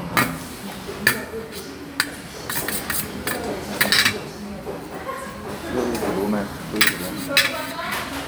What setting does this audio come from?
restaurant